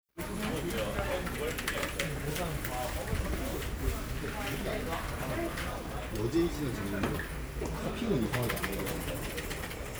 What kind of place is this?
crowded indoor space